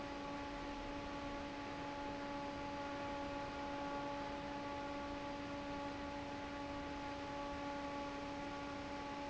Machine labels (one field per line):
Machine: fan